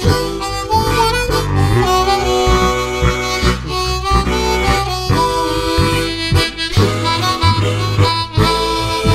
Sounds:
harmonica, wind instrument

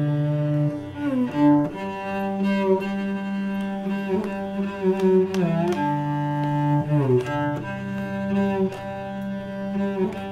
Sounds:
cello, musical instrument, double bass, music

